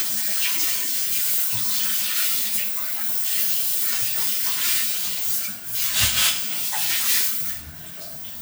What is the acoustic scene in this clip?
restroom